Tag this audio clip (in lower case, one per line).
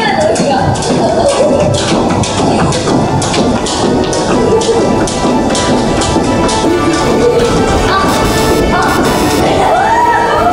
rope skipping